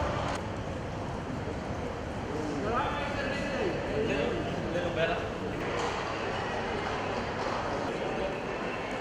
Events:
[0.00, 9.00] background noise
[0.00, 9.00] speech noise
[4.72, 5.26] man speaking
[7.27, 9.00] clip-clop

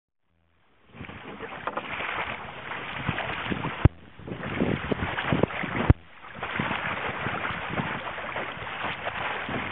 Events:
[0.17, 9.71] background noise
[0.87, 9.71] waves
[0.89, 9.71] sailboat
[2.88, 3.21] wind noise (microphone)
[3.40, 3.73] wind noise (microphone)
[3.80, 3.87] generic impact sounds
[4.14, 5.13] wind noise (microphone)
[5.26, 5.48] wind noise (microphone)
[5.61, 5.90] wind noise (microphone)
[5.86, 5.93] generic impact sounds
[6.54, 8.02] wind noise (microphone)
[9.43, 9.71] wind noise (microphone)

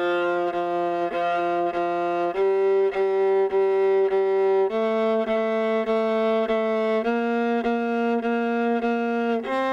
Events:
[0.00, 9.72] music

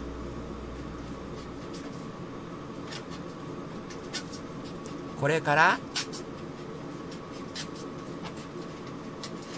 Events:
[0.00, 9.55] mechanisms
[5.15, 5.79] male speech

